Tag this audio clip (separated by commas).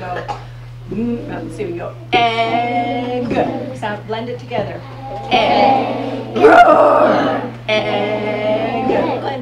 Speech